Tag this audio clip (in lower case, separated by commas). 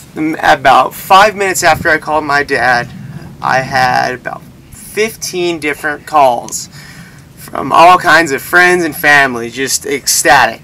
speech